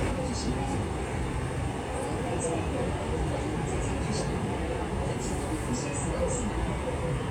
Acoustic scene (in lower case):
subway train